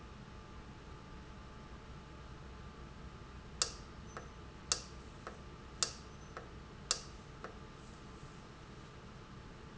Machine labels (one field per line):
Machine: valve